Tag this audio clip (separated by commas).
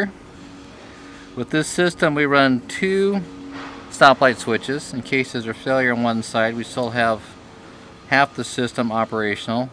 Speech